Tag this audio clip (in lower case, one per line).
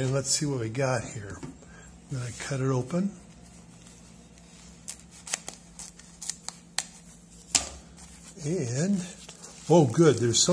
speech
tick-tock